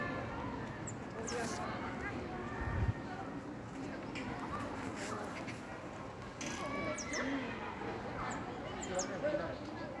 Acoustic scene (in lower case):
park